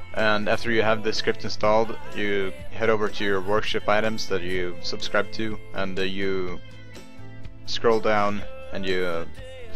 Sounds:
music, speech

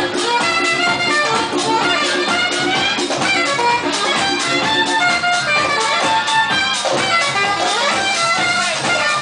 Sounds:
house music, music

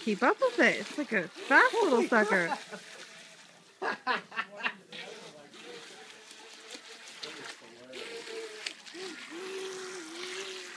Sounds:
speech

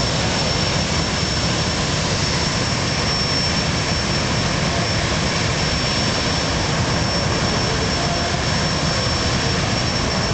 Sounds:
vehicle

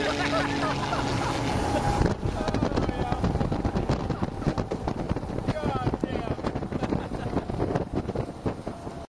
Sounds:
vehicle, speech

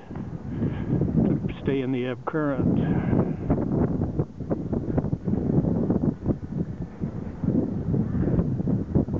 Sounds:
water vehicle, speech

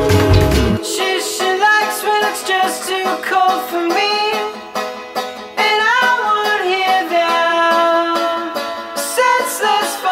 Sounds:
music, soundtrack music

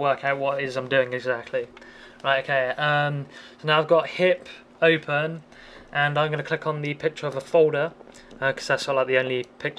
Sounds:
speech

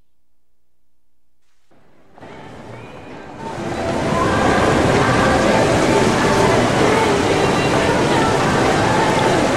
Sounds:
music

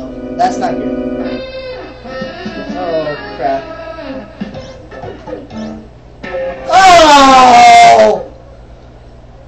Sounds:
music, speech

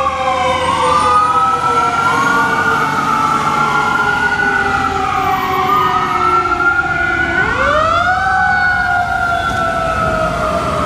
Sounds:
fire truck siren

